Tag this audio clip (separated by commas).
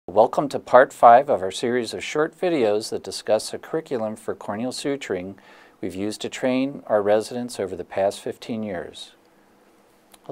Speech